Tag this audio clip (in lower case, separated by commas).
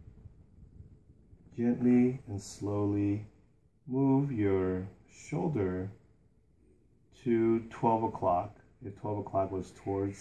speech